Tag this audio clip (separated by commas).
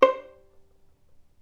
Bowed string instrument, Musical instrument, Music